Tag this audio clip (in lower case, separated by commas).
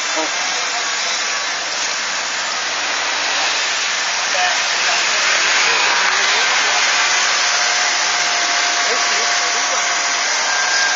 car, outside, urban or man-made, vehicle, speech